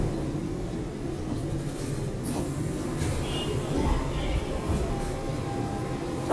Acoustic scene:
subway station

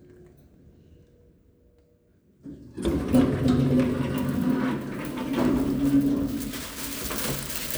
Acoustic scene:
elevator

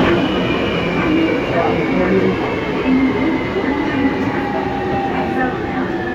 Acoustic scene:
subway train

